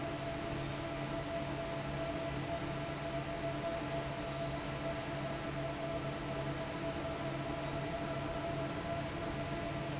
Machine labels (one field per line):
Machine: fan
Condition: normal